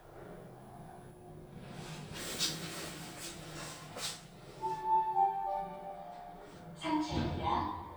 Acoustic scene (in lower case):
elevator